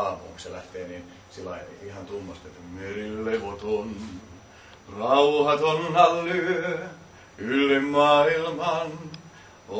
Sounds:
Speech

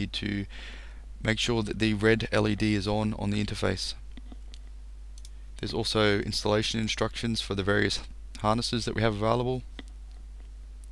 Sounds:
Speech

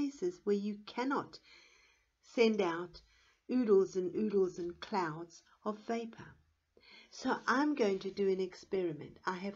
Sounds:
Speech

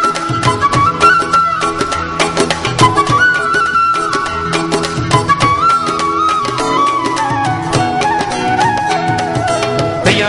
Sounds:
Gospel music, Music

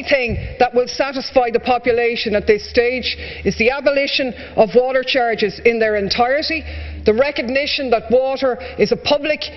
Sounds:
Speech

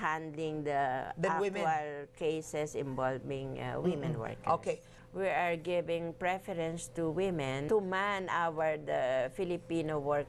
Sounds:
Speech, inside a small room

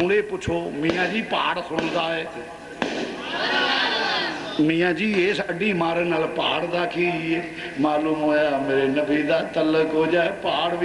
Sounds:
Speech, man speaking, Narration

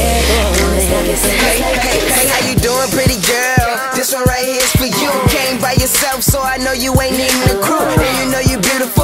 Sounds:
Music, Exciting music

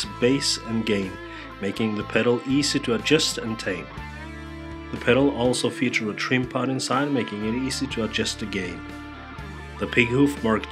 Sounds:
Music, Speech

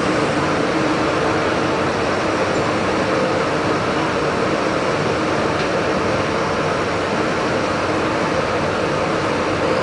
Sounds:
Vehicle, Engine

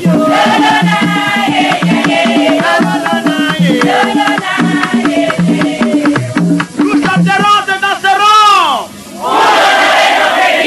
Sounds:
Speech, Music

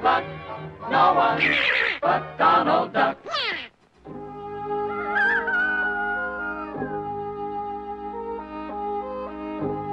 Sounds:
Quack, Music

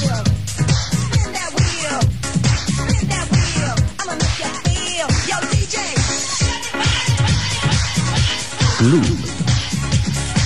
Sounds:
Music

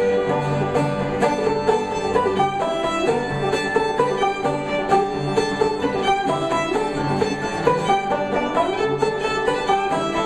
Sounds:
Guitar, Musical instrument, Banjo, Bluegrass

